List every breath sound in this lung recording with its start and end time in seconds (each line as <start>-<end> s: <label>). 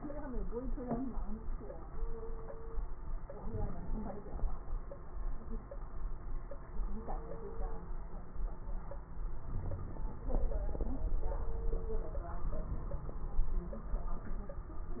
3.33-4.52 s: inhalation
3.33-4.52 s: crackles
9.45-10.12 s: wheeze